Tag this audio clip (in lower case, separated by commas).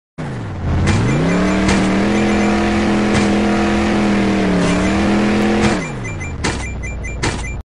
car, motor vehicle (road), vehicle